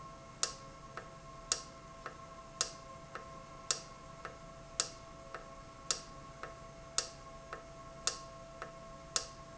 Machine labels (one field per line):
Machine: valve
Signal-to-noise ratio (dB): 6 dB